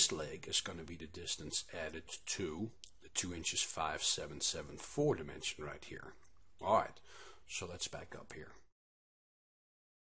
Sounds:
speech

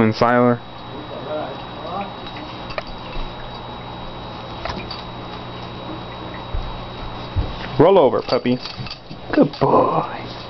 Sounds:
inside a small room
speech

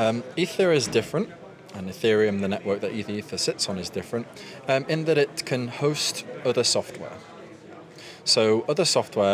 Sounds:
speech

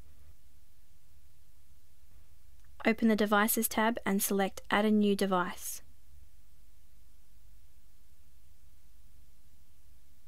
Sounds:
speech

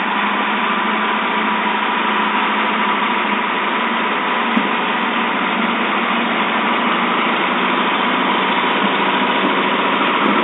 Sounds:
vehicle

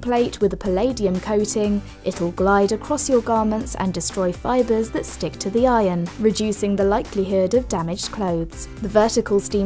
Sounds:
music
speech

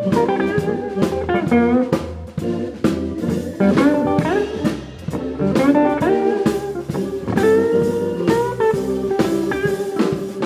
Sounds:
music

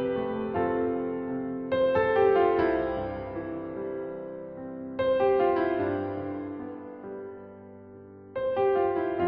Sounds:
music

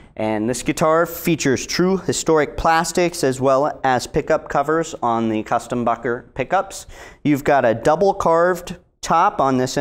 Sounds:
speech

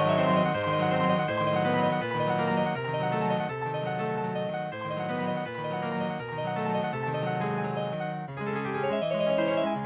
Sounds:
music

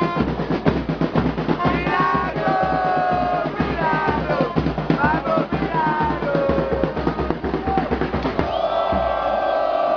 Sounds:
crowd
outside, urban or man-made
music

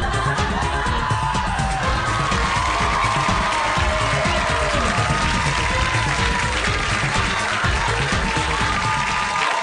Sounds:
music

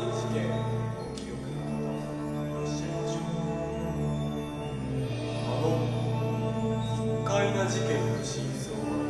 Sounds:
music
speech
orchestra

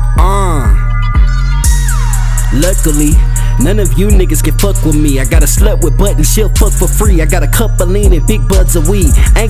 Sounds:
hip hop music
music

